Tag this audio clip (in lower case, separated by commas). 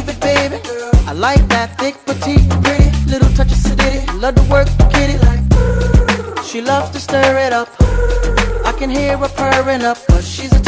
music